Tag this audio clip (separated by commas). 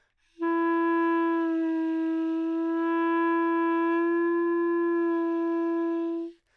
Musical instrument, Wind instrument, Music